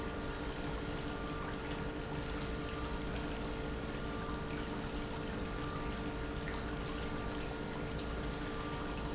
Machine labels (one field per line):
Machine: pump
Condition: normal